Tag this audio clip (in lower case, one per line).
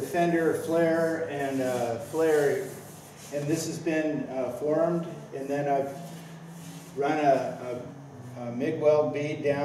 speech